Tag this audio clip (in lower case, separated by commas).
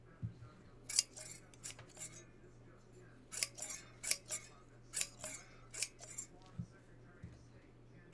home sounds, scissors